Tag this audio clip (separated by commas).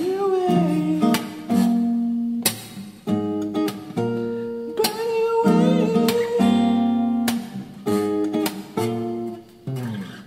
Strum, Music, Singing, Plucked string instrument, Guitar, Musical instrument